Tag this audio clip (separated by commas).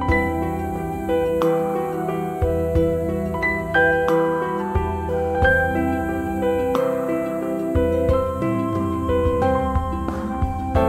New-age music